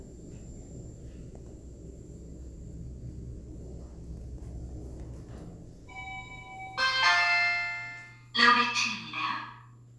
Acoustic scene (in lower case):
elevator